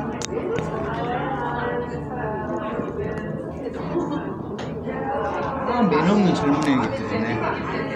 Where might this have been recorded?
in a cafe